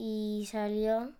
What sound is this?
speech